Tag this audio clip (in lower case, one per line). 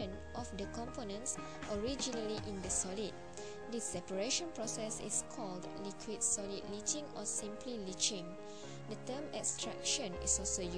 music
speech